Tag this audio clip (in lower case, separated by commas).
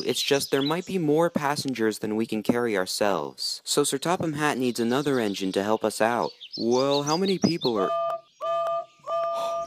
music, speech